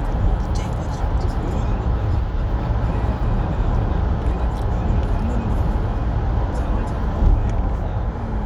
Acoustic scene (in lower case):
car